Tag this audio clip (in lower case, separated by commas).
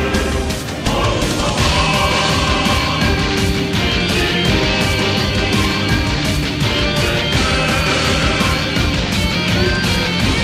music